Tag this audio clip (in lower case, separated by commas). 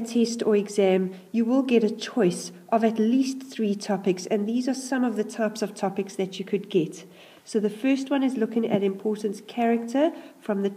speech